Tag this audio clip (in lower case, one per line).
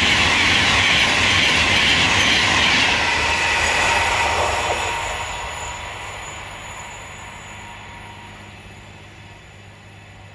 rail transport
train wagon
vehicle
train